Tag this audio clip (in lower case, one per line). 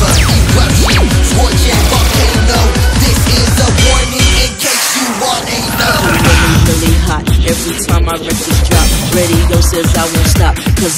music